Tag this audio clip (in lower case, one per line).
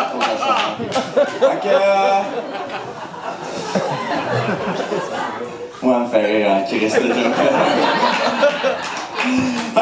speech